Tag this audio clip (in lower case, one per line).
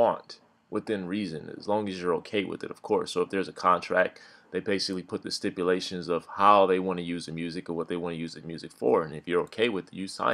speech